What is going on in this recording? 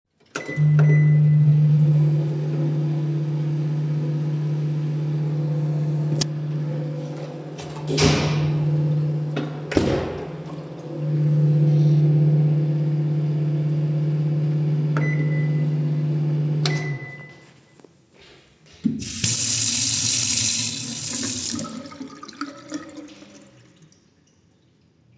I turned on the microwave, opened the window and then closed it. Then I went to the sink and turned the faucet on and then off.